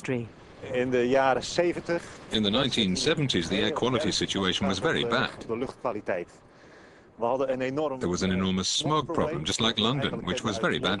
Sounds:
Speech

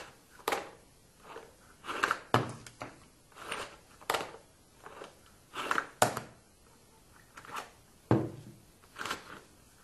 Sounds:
inside a small room

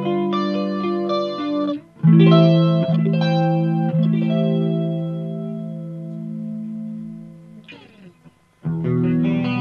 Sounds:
Plucked string instrument, Distortion, Music

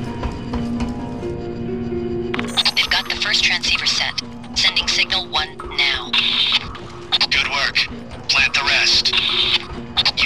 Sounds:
Speech, inside a large room or hall, Music

